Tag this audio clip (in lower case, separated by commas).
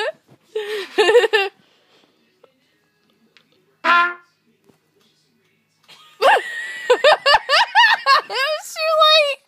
speech, musical instrument, music, trumpet